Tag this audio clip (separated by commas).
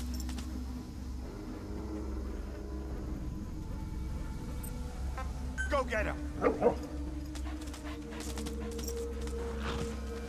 Animal, Dog, pets, Music, Speech, Bow-wow